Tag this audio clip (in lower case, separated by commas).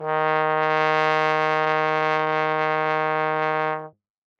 brass instrument, music, musical instrument